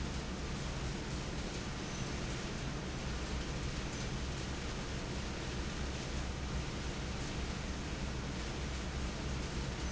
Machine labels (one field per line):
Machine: fan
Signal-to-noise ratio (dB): -6 dB